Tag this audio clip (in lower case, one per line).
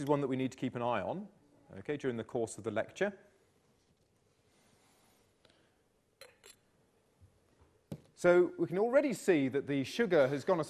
speech